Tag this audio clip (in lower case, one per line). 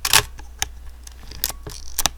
mechanisms
camera